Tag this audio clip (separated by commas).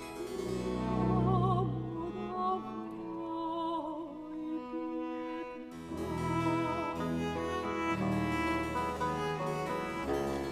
Opera, Bowed string instrument, Cello, Musical instrument, Music, Violin